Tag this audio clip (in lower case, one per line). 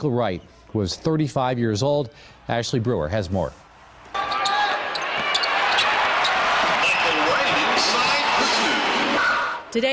speech
basketball bounce